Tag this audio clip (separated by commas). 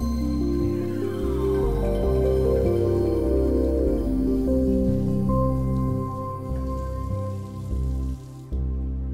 Music